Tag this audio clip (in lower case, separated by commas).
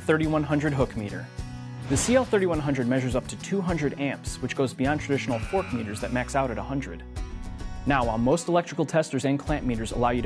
music, speech